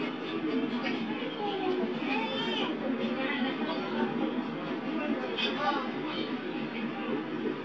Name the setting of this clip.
park